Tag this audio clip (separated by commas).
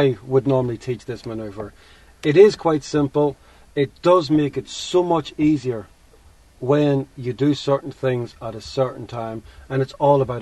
Speech